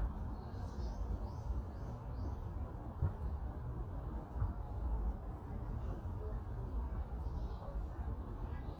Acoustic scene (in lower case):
park